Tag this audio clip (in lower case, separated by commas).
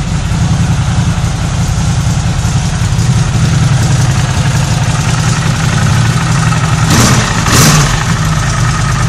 motorcycle, engine, medium engine (mid frequency), vehicle